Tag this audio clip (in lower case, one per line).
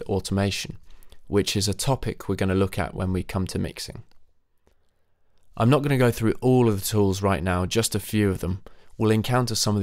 speech